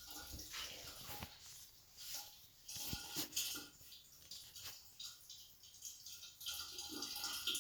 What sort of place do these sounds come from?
restroom